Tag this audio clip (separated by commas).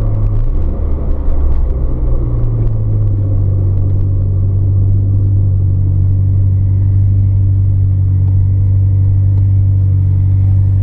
outside, urban or man-made, Vehicle, Car